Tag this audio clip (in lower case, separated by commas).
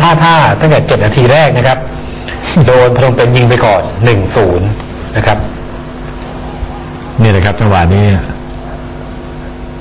speech